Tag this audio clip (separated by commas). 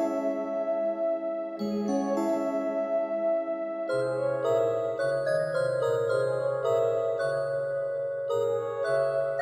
Glockenspiel, xylophone, Mallet percussion